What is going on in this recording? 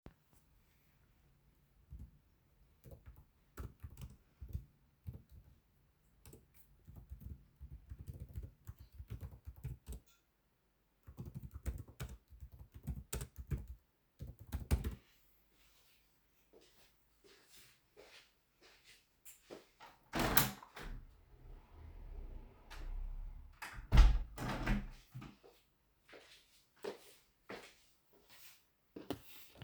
I typed on my keyboard after that opening and closing the living room window